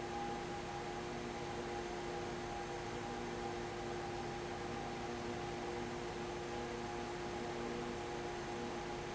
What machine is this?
fan